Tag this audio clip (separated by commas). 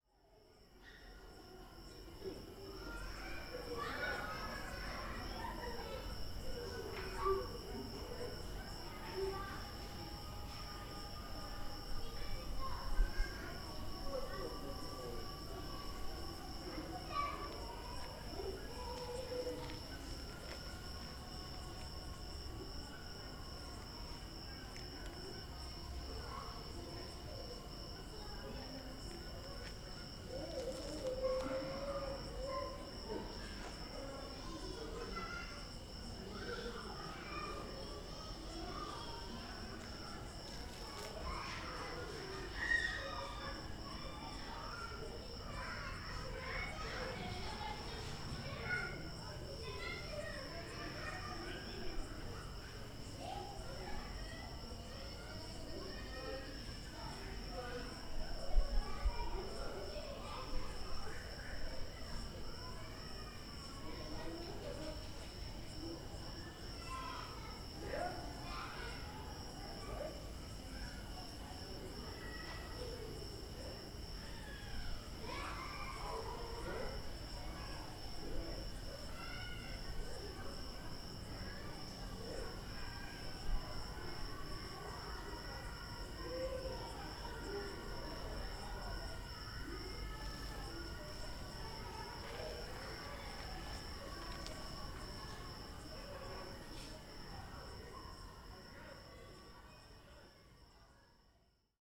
Screaming, Human voice